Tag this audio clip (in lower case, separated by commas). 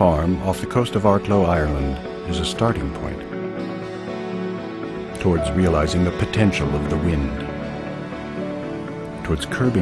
music, speech